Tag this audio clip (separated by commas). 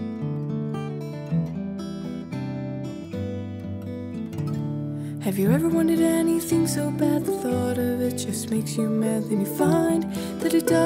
Music, New-age music